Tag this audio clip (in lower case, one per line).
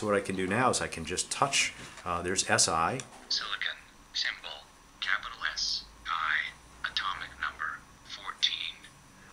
speech